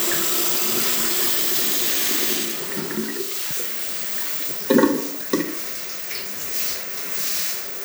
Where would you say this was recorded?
in a restroom